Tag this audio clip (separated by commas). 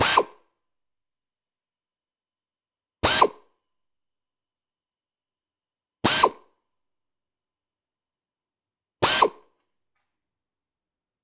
Tools, Drill, Power tool